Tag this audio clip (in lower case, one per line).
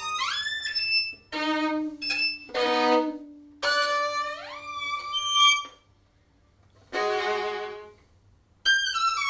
music
fiddle
musical instrument